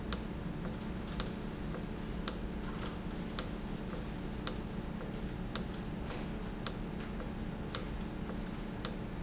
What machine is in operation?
valve